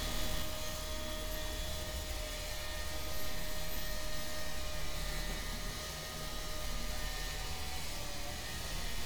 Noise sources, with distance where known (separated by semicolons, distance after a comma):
small-sounding engine